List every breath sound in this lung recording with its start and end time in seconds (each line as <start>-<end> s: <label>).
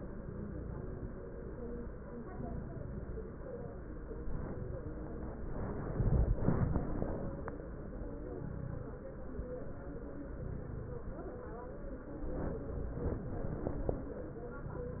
0.19-1.02 s: inhalation
0.19-1.02 s: crackles
2.28-3.11 s: inhalation
2.28-3.11 s: crackles
8.34-8.99 s: inhalation
8.34-8.99 s: crackles
10.24-11.08 s: inhalation
10.24-11.08 s: crackles
12.31-13.06 s: inhalation
12.31-13.06 s: crackles
14.61-15.00 s: inhalation
14.61-15.00 s: crackles